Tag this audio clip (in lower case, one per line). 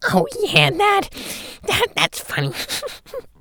human voice
laughter